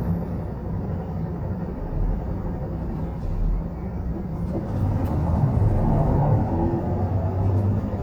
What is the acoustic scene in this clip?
bus